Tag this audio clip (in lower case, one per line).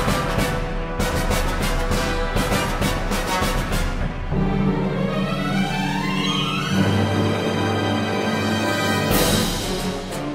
music
soundtrack music